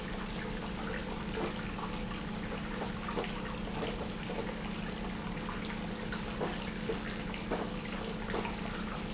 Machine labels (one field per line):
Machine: pump